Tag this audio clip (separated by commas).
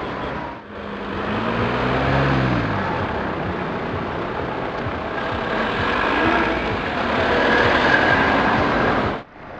Motor vehicle (road), Vehicle, Car